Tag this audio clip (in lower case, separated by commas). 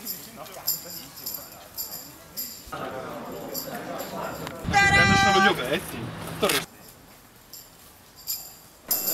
music, speech